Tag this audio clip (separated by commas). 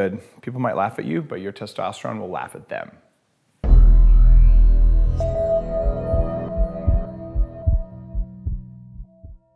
Speech, Male speech, Music